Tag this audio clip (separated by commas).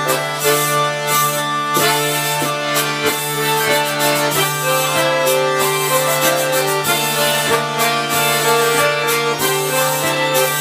Accordion